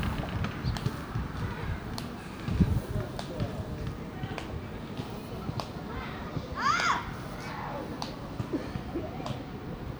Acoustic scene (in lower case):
residential area